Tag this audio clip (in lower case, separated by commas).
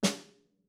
percussion, music, snare drum, musical instrument, drum